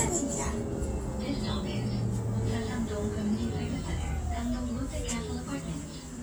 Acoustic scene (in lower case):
bus